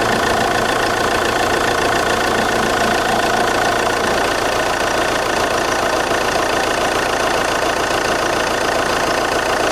Loud vibrations from a motor